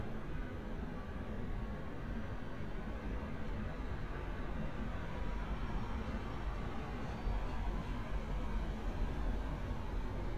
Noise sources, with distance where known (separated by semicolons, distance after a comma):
engine of unclear size, far